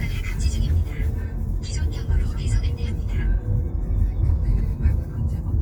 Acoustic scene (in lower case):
car